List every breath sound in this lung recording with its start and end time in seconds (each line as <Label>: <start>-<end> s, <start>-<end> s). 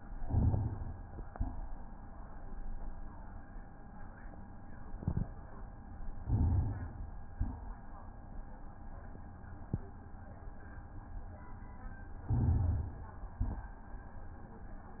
Inhalation: 0.15-1.20 s, 6.21-7.27 s, 12.28-13.28 s
Exhalation: 1.20-1.84 s, 7.27-7.95 s, 13.28-13.91 s